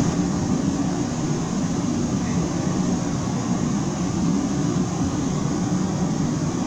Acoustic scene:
subway train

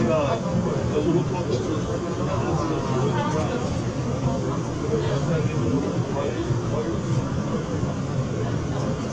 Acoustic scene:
subway train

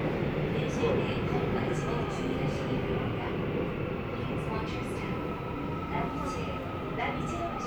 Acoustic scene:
subway train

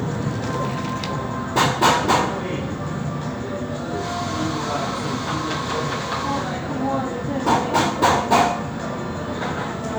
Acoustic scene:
cafe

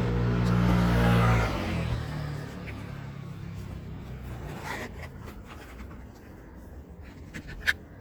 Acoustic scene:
street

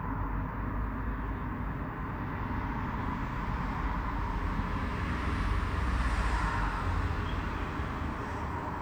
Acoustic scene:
street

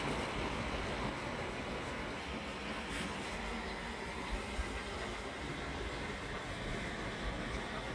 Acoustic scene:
park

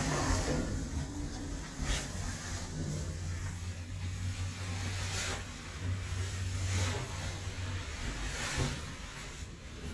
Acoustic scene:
elevator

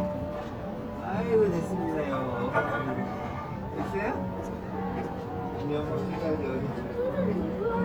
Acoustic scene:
crowded indoor space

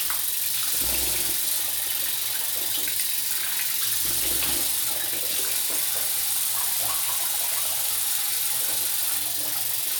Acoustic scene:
restroom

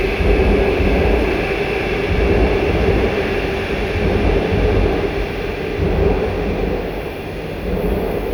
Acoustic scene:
subway station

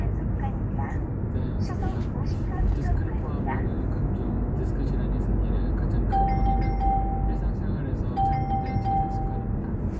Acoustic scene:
car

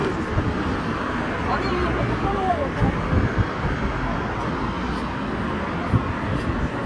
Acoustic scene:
street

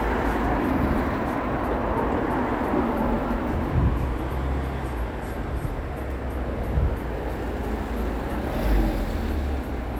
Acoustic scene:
street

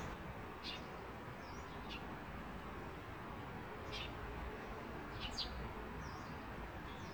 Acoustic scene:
park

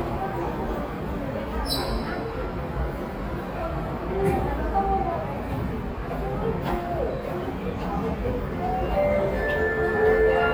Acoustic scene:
subway station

